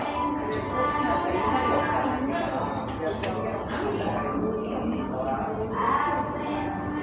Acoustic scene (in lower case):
cafe